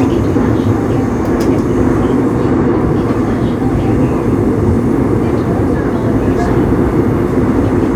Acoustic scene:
subway train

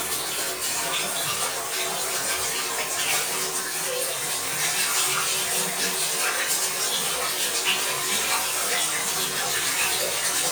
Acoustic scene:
restroom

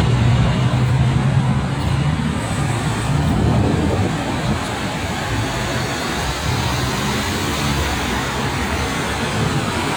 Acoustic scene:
street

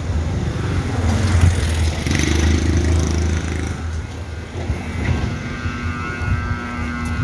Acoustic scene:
residential area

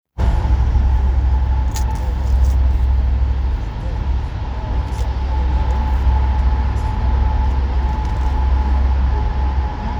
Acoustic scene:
car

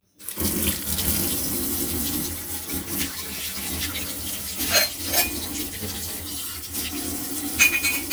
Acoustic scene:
kitchen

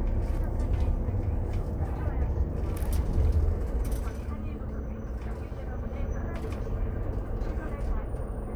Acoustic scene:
bus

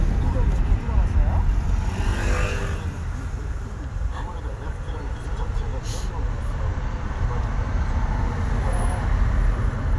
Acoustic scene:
car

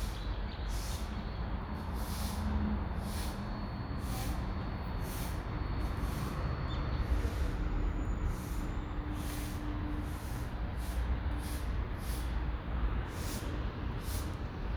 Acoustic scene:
residential area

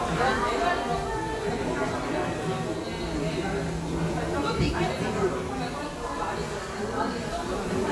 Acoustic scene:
crowded indoor space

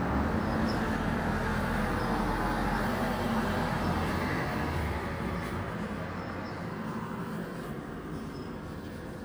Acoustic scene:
residential area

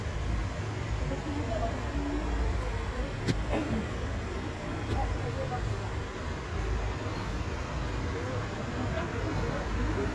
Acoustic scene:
residential area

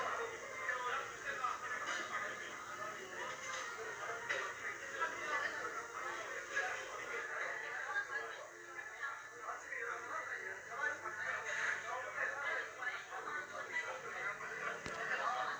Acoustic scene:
restaurant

